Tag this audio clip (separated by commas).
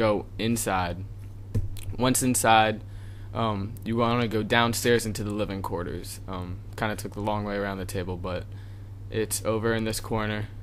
Speech